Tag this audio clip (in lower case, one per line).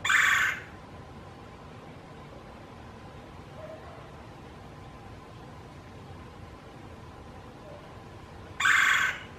woodpecker pecking tree